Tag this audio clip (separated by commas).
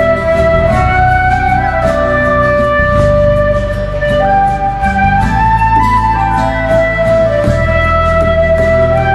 playing flute, Flute, Music